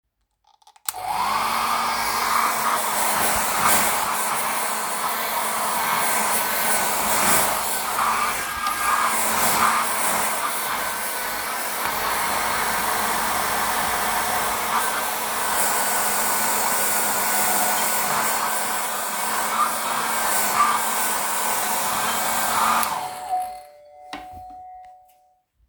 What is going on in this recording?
I used a vaccume cleaner, bell ring on the background while the the vaccume cleaner is on